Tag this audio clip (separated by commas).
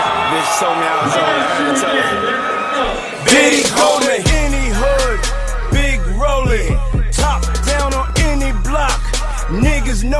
Speech, Music